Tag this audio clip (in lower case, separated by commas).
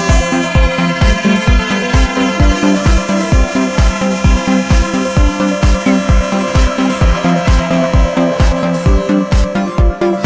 music